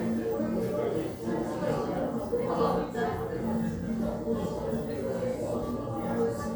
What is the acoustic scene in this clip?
crowded indoor space